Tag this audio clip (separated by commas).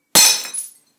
Shatter, Glass